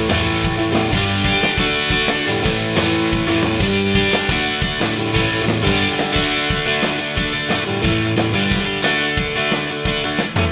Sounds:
music
rock music

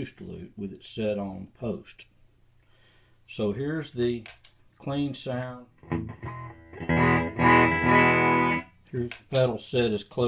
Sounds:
speech
music
distortion

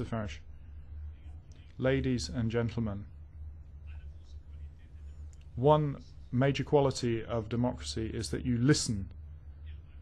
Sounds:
speech
male speech
narration

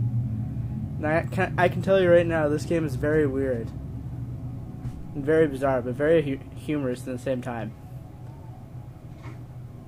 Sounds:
speech
music

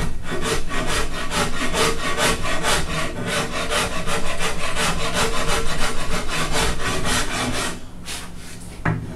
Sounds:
wood
sawing

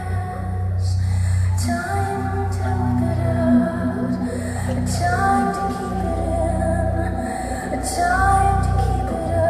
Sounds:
music

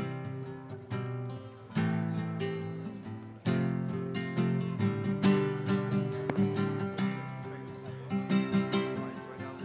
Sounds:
music
speech

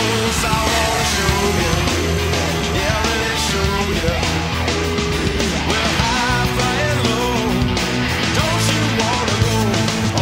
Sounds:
music

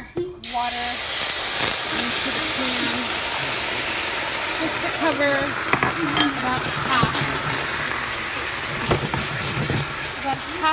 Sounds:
speech

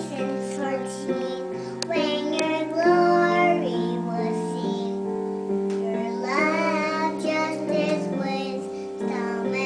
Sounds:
child singing
music

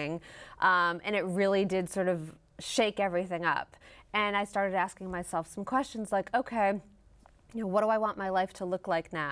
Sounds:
speech
female speech

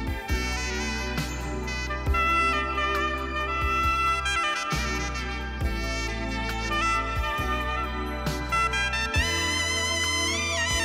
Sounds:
playing saxophone

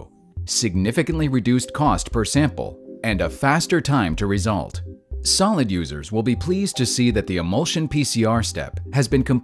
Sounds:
music
speech

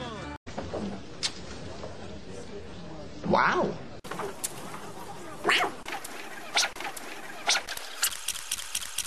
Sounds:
speech

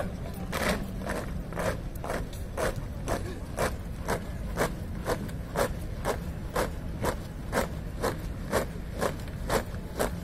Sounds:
people marching

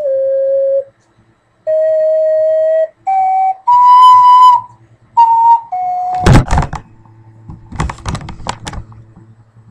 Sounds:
music

